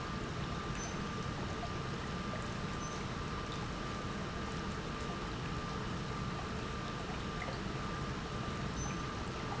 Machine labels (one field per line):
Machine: pump